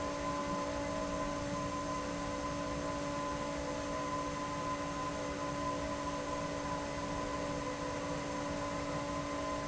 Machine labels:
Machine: fan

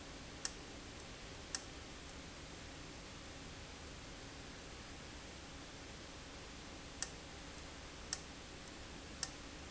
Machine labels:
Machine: valve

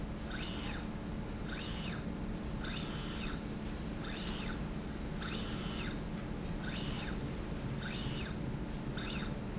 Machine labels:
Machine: slide rail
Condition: normal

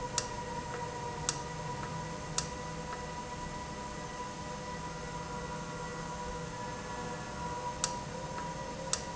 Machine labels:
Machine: valve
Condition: normal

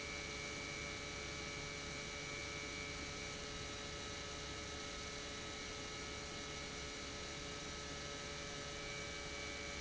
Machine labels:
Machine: pump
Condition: normal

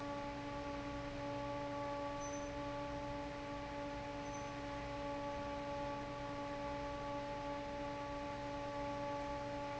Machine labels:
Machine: fan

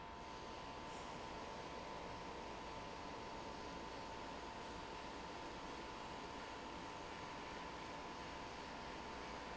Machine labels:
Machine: pump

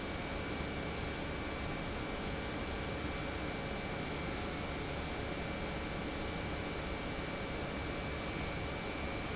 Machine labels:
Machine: pump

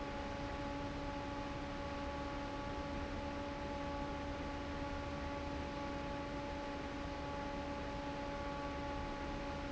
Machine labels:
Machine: fan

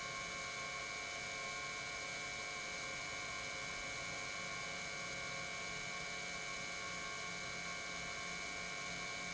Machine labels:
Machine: pump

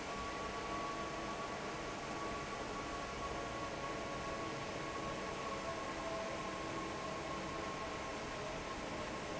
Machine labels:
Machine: fan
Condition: normal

